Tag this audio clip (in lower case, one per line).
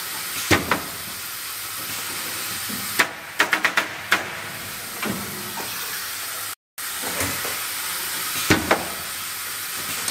inside a small room